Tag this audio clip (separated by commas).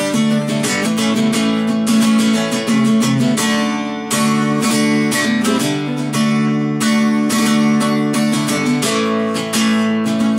Guitar, Electric guitar, Music, Musical instrument, Strum